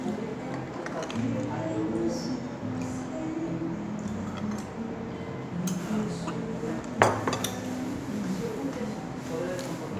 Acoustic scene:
restaurant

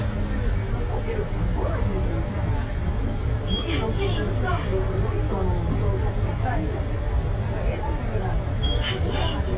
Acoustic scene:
bus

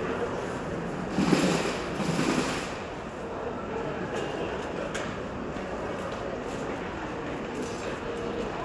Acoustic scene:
crowded indoor space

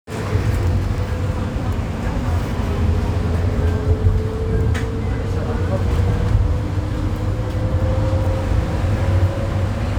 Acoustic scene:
bus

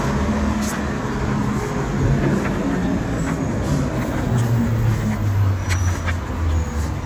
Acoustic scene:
street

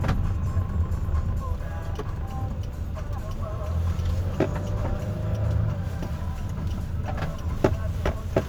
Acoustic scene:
car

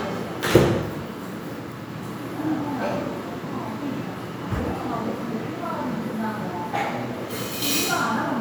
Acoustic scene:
crowded indoor space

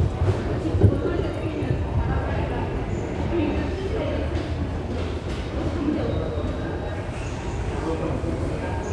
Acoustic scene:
subway station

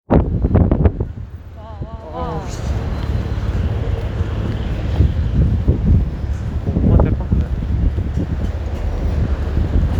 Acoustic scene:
street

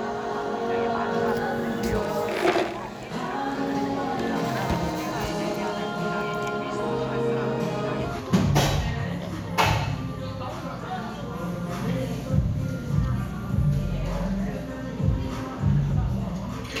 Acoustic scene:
cafe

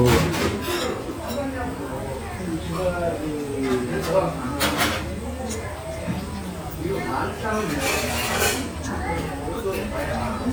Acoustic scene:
restaurant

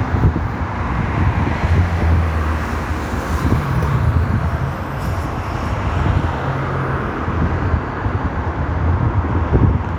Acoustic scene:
street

